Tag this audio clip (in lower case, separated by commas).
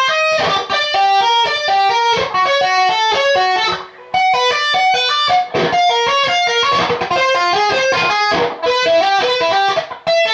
electric guitar, music, plucked string instrument, guitar, musical instrument, strum